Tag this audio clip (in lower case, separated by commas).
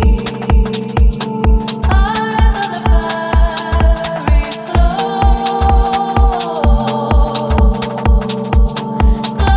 music